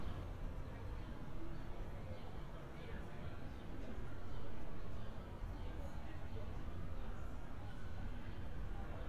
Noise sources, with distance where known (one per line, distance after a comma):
person or small group talking, far